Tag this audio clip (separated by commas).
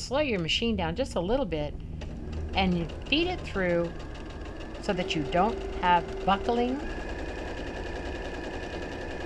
Sewing machine, Speech